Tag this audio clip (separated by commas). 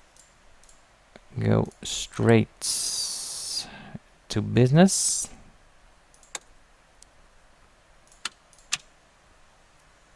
Speech